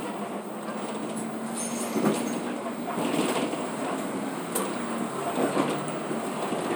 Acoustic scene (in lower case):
bus